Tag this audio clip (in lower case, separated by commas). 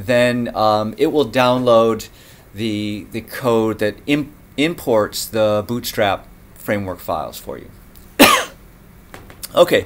speech, inside a small room